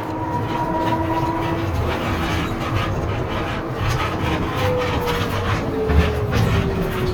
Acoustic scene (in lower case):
bus